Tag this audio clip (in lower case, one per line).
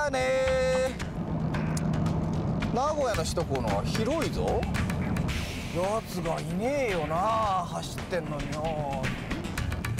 music
speech